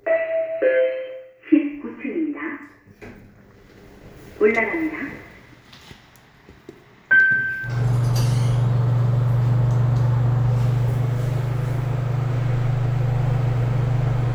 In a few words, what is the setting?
elevator